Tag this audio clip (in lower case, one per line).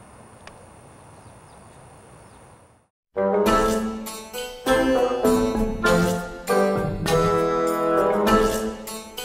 music
outside, rural or natural
harpsichord